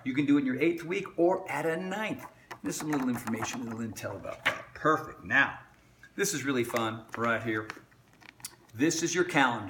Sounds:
Speech, inside a small room

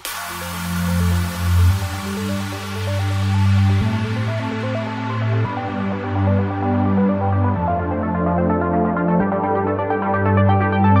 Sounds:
Music

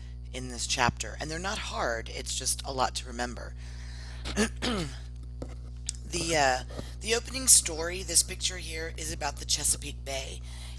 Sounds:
Speech

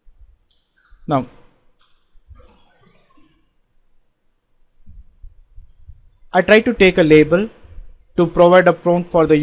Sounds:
Speech synthesizer, Speech

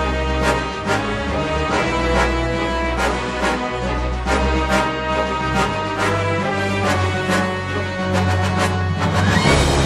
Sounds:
Music

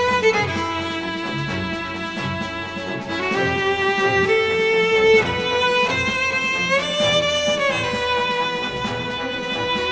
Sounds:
Musical instrument, Music, fiddle

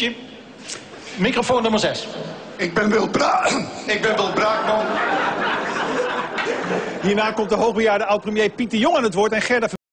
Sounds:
Speech

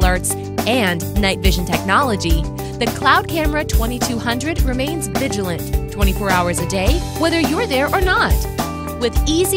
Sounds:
Music, Speech

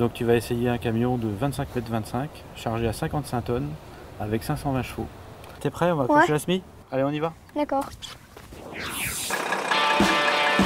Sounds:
Truck, Vehicle

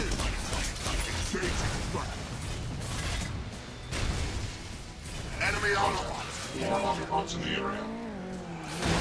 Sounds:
Music, Speech

